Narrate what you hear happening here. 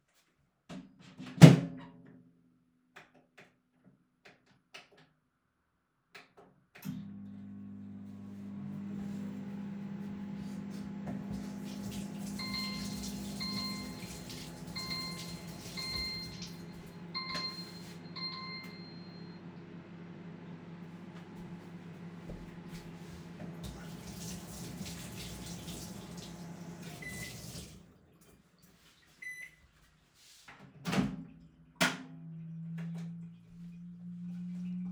person starting microwave running water while alarm goes off